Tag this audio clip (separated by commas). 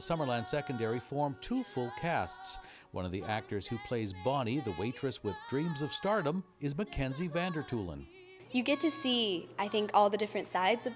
woman speaking